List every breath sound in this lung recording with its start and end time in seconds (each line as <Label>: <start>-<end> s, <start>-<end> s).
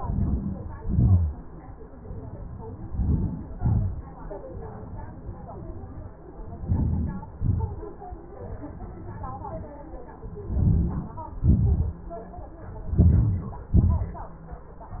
Inhalation: 0.00-0.84 s, 2.71-3.61 s, 6.47-7.23 s, 10.26-11.21 s, 12.67-13.71 s
Exhalation: 0.87-1.58 s, 3.60-4.29 s, 7.27-7.97 s, 11.25-12.09 s, 13.70-14.41 s